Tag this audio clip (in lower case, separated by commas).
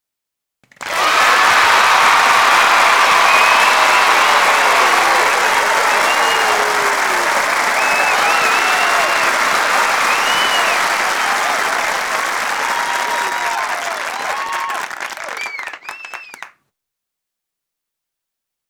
crowd, cheering, applause, human group actions